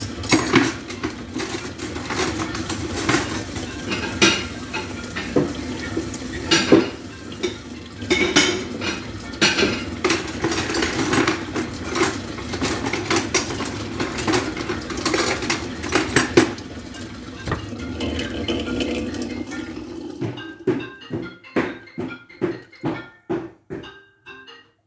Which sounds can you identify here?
running water, cutlery and dishes, phone ringing, footsteps